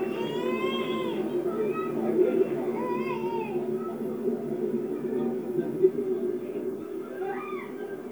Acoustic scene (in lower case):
park